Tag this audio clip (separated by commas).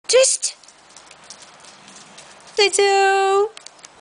Speech